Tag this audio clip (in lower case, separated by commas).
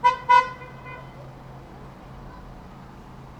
motor vehicle (road), car, traffic noise, car horn, vehicle, alarm